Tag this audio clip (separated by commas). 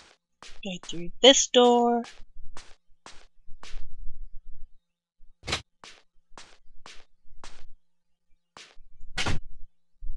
Speech